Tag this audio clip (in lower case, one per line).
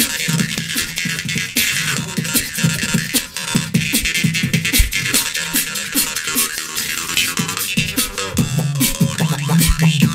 beat boxing